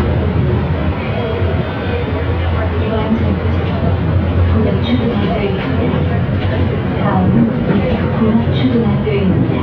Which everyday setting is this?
bus